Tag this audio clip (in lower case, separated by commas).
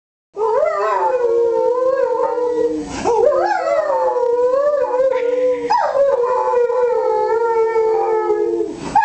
animal, howl, dog